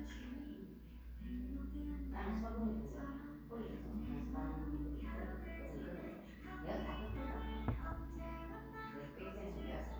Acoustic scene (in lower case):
crowded indoor space